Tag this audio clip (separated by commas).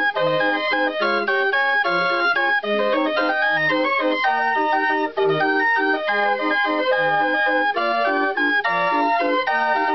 Music